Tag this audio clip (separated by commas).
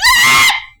Screaming, Human voice